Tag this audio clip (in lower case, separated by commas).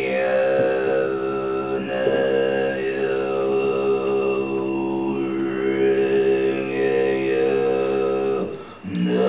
music, musical instrument